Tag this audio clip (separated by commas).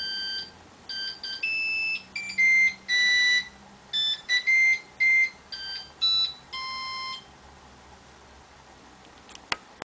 inside a small room